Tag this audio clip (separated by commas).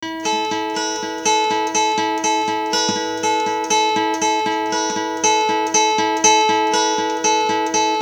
Plucked string instrument, Guitar, Music, Musical instrument, Acoustic guitar